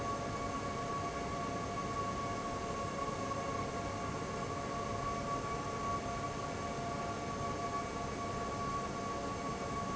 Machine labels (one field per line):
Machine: fan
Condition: abnormal